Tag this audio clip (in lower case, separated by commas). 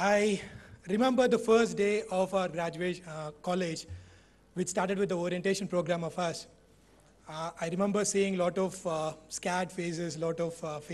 speech, male speech